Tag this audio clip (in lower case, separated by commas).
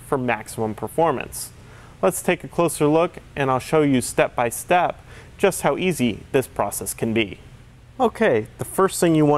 speech